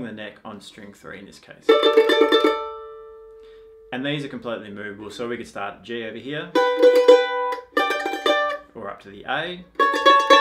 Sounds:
playing mandolin

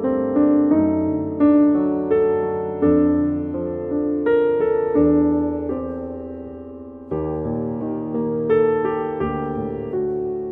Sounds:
Music

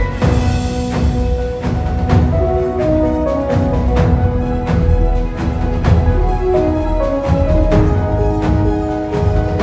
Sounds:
Music

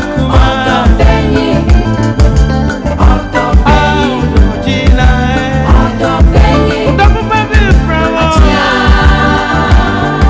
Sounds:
Music

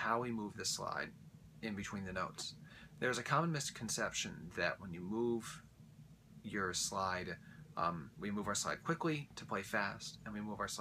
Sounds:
Speech

